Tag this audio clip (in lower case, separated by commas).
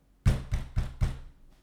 knock, domestic sounds, door